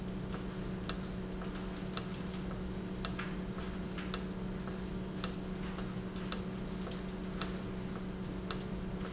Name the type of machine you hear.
valve